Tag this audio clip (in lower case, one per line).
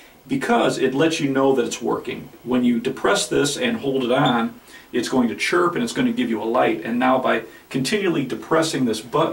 speech
inside a small room